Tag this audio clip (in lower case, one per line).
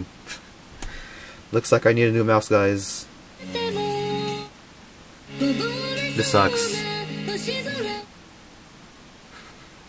speech
music